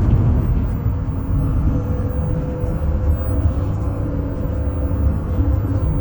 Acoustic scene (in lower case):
bus